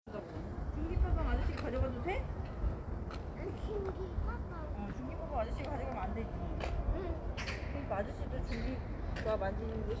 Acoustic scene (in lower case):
residential area